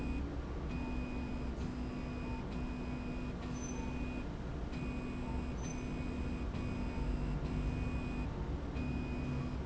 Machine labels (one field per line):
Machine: slide rail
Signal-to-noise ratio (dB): -6 dB